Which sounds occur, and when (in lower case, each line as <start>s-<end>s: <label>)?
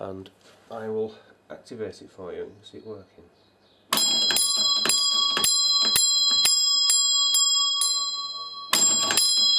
0.0s-0.3s: male speech
0.0s-9.5s: mechanisms
0.4s-0.8s: surface contact
0.7s-1.3s: male speech
1.1s-1.3s: breathing
1.4s-2.4s: male speech
2.6s-3.1s: bird song
2.6s-3.3s: male speech
3.3s-3.9s: bird song
3.9s-9.5s: bell